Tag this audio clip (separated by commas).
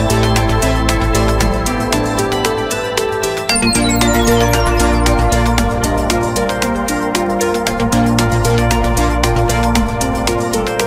Theme music, Music